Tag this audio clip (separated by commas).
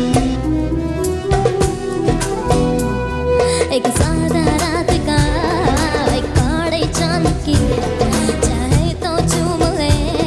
child singing